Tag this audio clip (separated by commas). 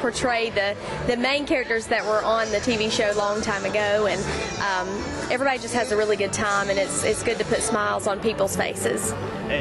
Speech, Music